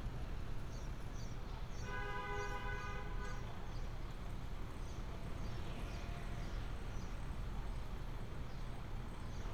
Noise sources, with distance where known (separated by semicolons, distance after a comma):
car horn, far